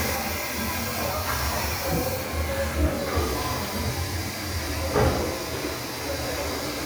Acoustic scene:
restroom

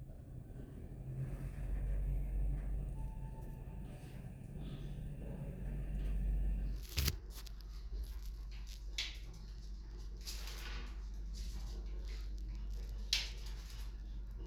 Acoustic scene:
elevator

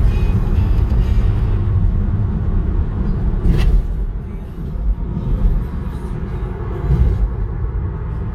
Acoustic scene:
car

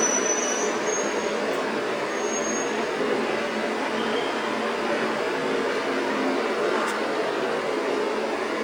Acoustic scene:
street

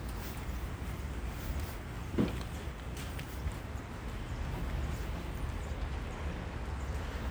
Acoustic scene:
residential area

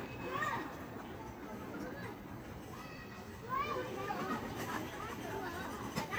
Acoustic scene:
park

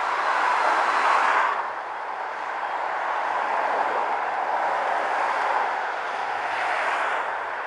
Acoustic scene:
street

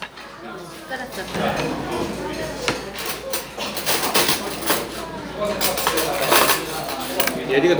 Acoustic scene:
restaurant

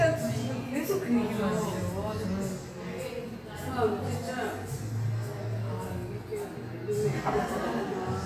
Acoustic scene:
cafe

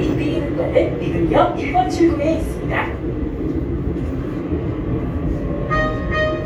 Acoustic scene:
subway train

